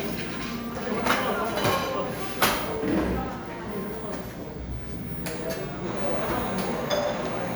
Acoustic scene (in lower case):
cafe